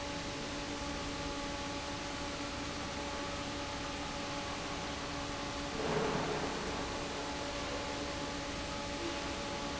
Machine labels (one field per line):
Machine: fan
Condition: normal